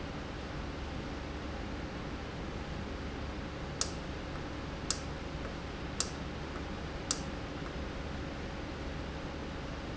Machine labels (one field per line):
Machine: valve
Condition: normal